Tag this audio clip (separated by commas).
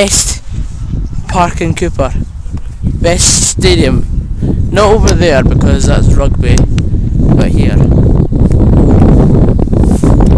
Speech